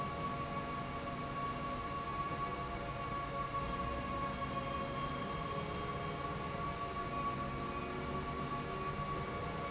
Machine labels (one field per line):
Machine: slide rail